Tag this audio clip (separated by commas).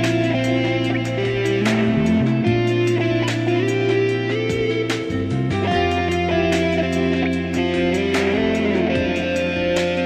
Guitar, Acoustic guitar, playing electric guitar, Musical instrument, Music, Plucked string instrument, Electric guitar